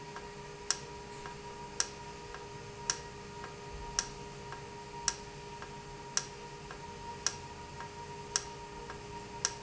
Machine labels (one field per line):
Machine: valve